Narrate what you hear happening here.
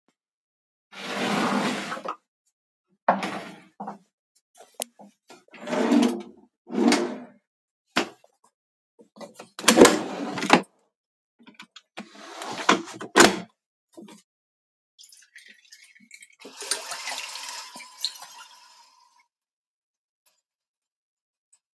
opened kitchen door. checked drawers. opnened the window then opened tap. closed it